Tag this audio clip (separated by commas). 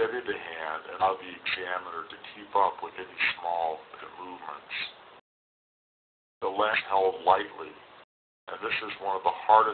Speech